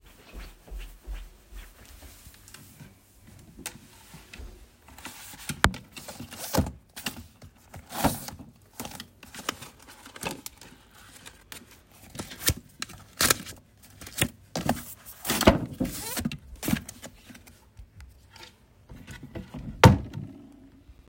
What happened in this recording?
I walked to the wardrobe, opened it, searched some documents and closed the wardrobe